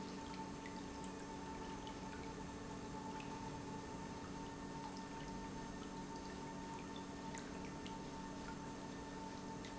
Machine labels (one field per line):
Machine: pump